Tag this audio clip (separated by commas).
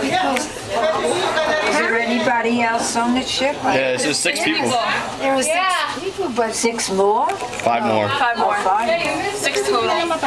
Speech